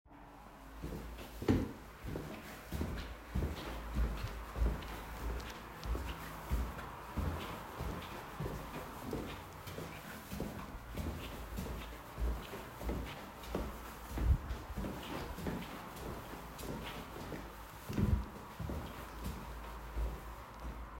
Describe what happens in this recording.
I walked through the hallway while checking whether the lights were turned off.